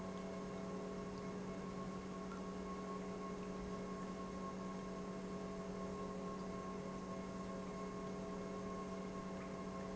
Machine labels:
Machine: pump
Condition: normal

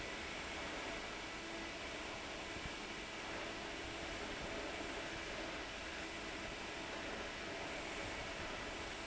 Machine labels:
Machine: fan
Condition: abnormal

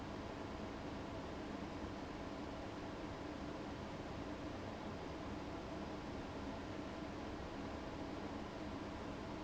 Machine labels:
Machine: fan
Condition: abnormal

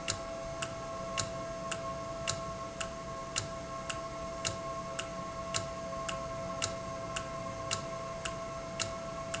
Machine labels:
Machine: valve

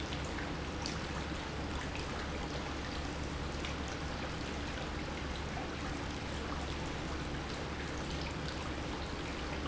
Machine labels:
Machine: pump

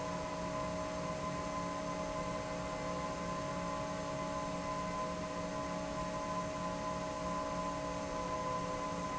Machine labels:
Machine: fan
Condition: normal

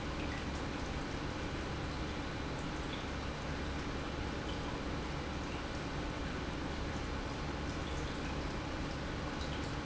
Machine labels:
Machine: pump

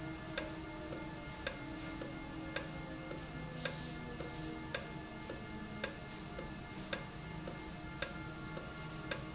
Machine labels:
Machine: valve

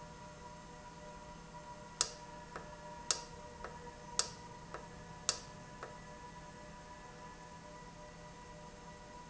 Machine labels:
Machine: valve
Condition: normal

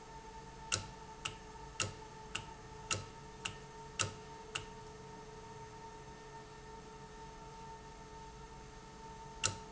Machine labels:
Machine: valve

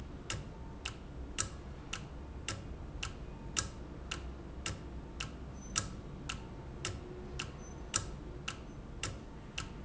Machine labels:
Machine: valve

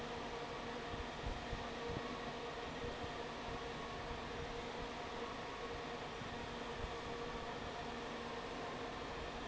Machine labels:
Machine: fan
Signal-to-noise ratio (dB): 6 dB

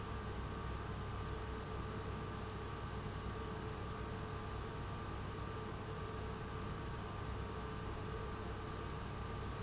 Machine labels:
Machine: pump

